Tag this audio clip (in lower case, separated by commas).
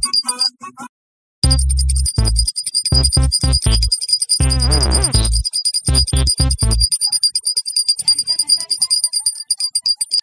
music, inside a small room